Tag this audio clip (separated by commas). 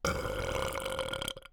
Burping